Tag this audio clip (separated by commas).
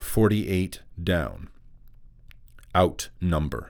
Speech, Human voice, man speaking